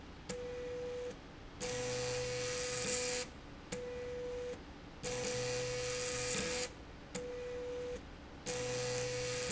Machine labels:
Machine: slide rail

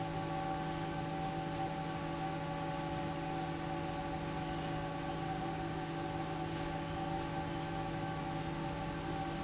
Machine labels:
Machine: fan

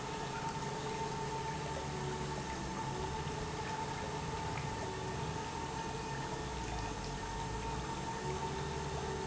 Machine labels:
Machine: pump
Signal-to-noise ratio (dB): -6 dB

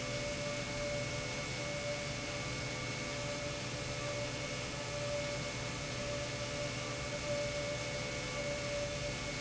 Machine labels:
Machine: pump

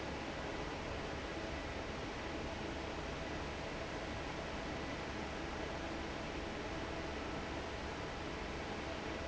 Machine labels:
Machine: fan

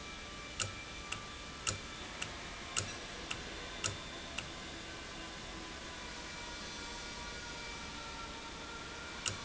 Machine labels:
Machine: valve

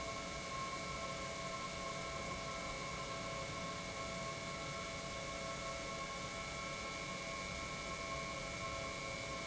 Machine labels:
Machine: pump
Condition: normal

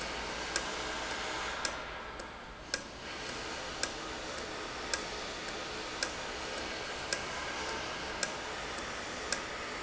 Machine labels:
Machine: valve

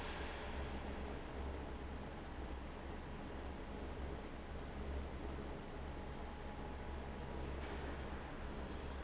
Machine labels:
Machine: fan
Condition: abnormal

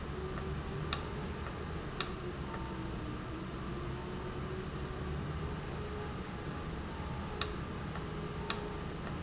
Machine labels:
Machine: valve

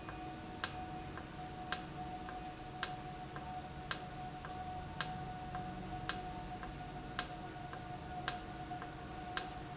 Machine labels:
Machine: valve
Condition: normal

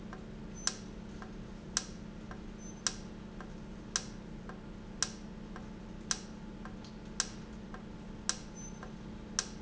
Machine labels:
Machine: valve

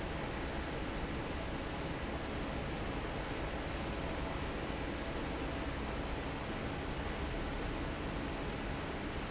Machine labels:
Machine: fan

